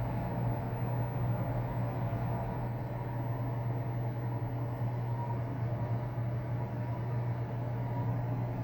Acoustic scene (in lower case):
elevator